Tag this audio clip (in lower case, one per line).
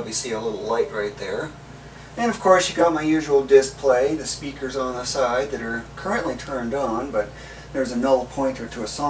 speech